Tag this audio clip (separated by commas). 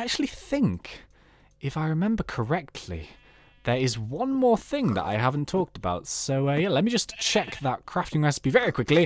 Speech